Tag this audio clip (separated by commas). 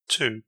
Male speech, Speech, Human voice